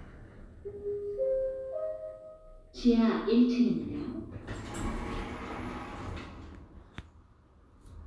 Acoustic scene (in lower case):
elevator